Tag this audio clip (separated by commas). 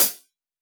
Music, Musical instrument, Percussion, Cymbal, Hi-hat